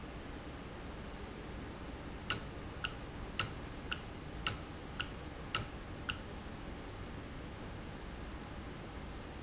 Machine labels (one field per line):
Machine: valve